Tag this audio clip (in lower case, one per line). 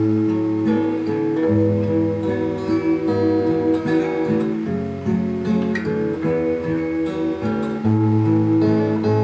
strum
guitar
plucked string instrument
music
musical instrument
acoustic guitar